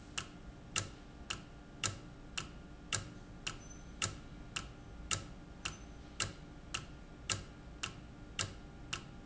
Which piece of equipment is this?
valve